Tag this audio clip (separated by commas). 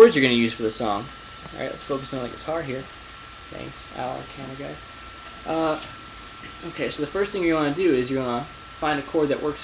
Speech